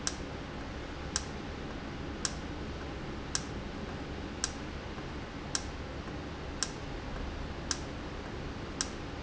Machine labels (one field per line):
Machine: valve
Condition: normal